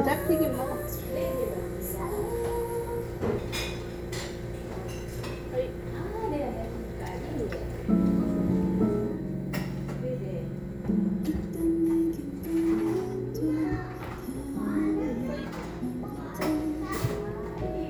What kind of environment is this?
crowded indoor space